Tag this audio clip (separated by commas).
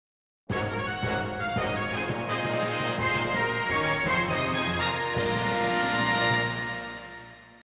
Music